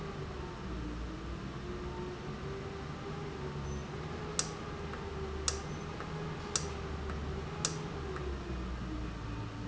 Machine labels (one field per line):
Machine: valve